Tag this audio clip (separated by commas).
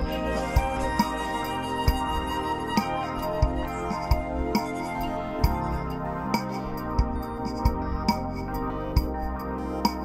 Music